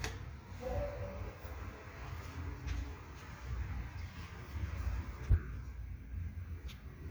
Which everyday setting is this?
elevator